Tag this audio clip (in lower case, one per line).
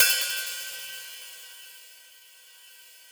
crash cymbal
percussion
hi-hat
cymbal
music
musical instrument